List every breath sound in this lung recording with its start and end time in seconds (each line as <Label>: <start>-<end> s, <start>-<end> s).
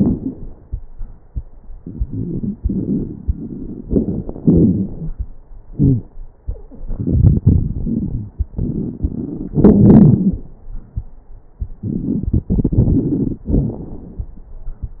Inhalation: 1.78-3.81 s, 6.83-9.51 s, 11.86-13.49 s
Exhalation: 3.86-5.16 s, 9.57-10.56 s, 13.51-14.37 s
Wheeze: 5.69-6.08 s, 9.57-10.56 s
Crackles: 1.78-3.81 s, 3.86-5.16 s, 6.83-9.51 s, 11.86-13.49 s, 13.51-14.37 s